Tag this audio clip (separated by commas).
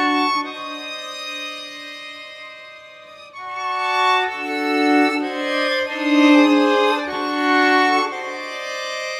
Music, Harpsichord